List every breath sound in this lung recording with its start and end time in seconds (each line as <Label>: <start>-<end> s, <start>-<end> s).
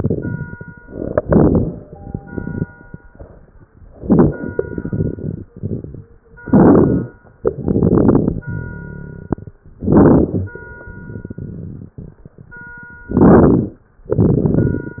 Inhalation: 0.85-1.82 s, 3.96-4.53 s, 6.41-7.16 s, 9.83-10.53 s, 13.17-13.87 s
Exhalation: 0.00-0.74 s, 1.86-2.70 s, 4.53-5.47 s, 7.40-8.45 s, 14.04-15.00 s
Crackles: 0.00-0.74 s, 0.85-1.82 s, 1.86-2.70 s, 3.96-4.53 s, 4.53-5.47 s, 6.41-7.16 s, 7.40-8.45 s, 9.83-10.53 s, 13.17-13.87 s, 14.04-15.00 s